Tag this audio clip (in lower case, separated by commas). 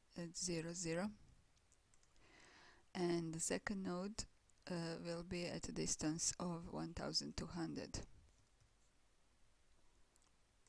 inside a small room, speech